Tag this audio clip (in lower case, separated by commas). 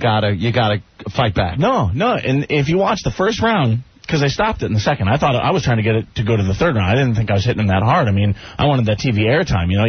speech